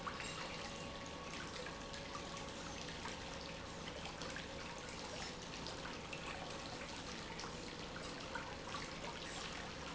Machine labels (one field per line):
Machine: pump